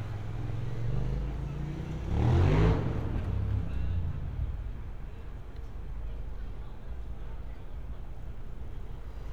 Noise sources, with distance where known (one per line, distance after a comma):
medium-sounding engine, near